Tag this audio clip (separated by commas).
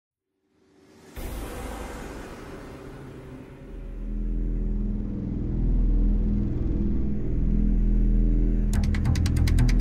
Music